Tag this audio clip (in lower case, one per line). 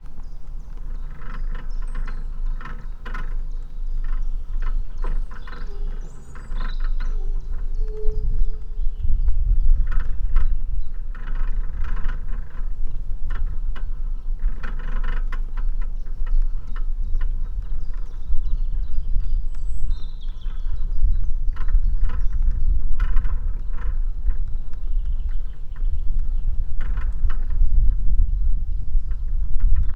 bird
animal
wild animals